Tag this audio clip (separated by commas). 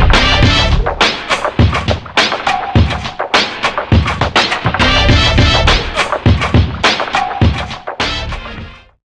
Music